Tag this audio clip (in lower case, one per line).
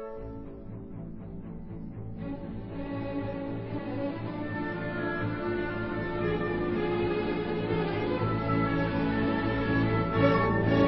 bowed string instrument
violin